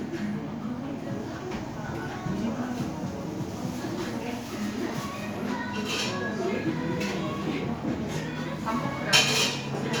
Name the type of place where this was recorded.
crowded indoor space